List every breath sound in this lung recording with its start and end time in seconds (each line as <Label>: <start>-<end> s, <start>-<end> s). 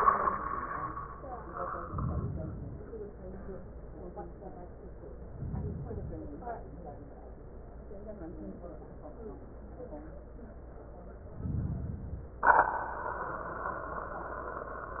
Inhalation: 1.79-2.84 s, 5.31-6.35 s, 11.36-12.35 s